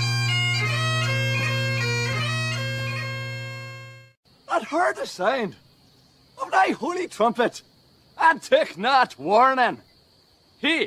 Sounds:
speech, music, bagpipes

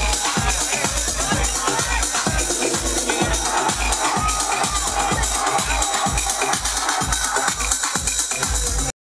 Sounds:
music, speech

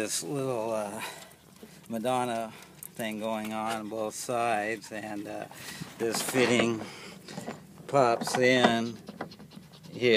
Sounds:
speech

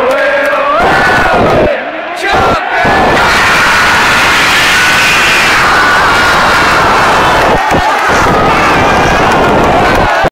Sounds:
speech

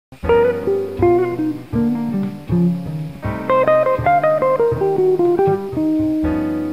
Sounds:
plucked string instrument, guitar, music, musical instrument, strum

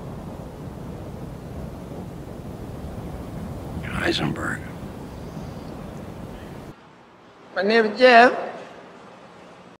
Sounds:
speech

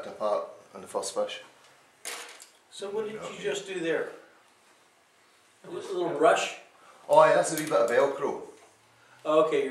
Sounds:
speech, inside a small room

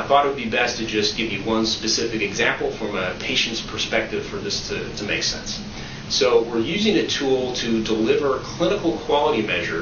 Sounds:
speech

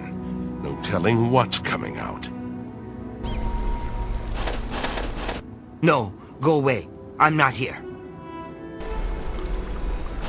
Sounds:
music, speech

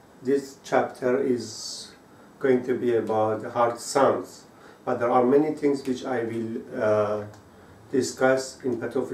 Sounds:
speech

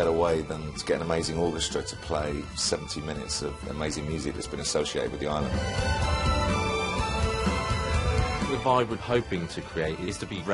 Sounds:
speech, music, orchestra

